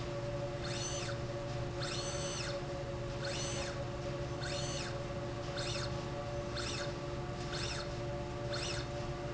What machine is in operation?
slide rail